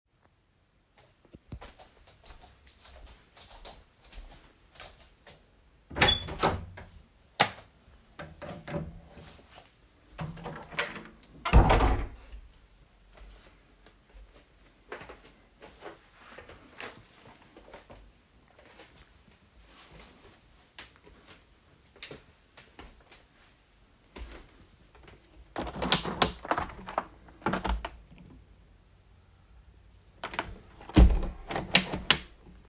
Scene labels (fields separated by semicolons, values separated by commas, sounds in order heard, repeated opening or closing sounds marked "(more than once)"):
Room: bedroom, hallway, living room; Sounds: footsteps, door (more than once), light switch, window (more than once)